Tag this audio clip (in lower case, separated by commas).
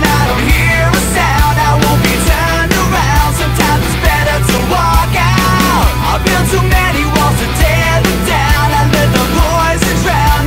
music